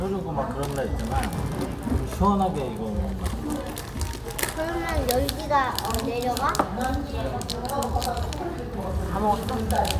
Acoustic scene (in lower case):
restaurant